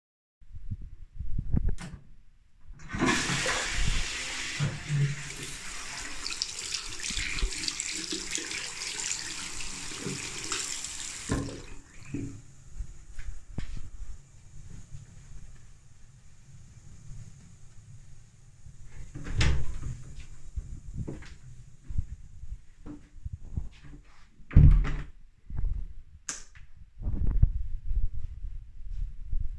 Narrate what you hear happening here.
I flushed the toilet, then walked to the sink and washed my hands. After that I opened and closed the door, and turned off the light